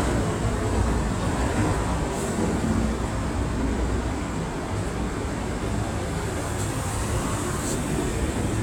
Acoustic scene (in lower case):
street